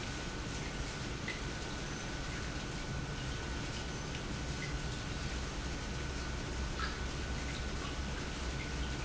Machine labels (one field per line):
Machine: pump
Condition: normal